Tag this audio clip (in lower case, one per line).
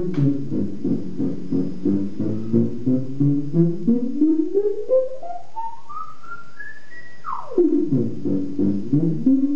music
theremin